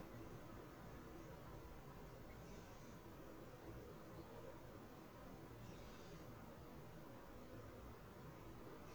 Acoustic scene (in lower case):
park